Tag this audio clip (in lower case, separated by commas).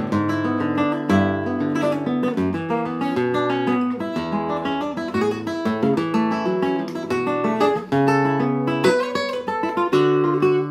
music, guitar, musical instrument, plucked string instrument